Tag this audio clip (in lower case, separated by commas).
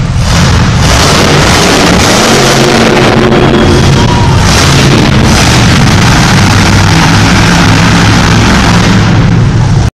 truck, vehicle